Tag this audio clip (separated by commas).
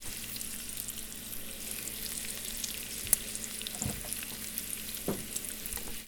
Domestic sounds, Frying (food)